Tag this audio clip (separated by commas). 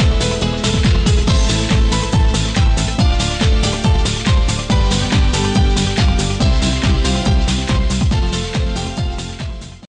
Music